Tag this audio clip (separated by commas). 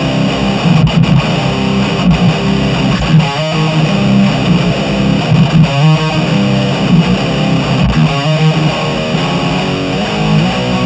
Plucked string instrument, Guitar, Musical instrument, Electric guitar, Strum, Music